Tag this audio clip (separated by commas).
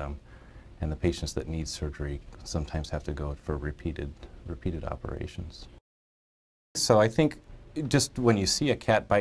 Speech